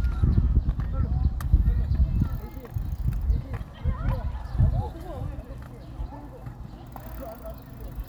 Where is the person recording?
in a park